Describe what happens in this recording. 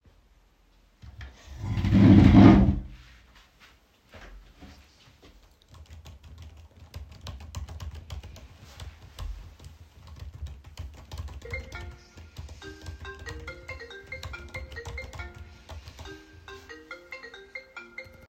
I moved my chair so I could sit on it to search something on my laptop and started typing on my keyboard, while typing my phone began to ring.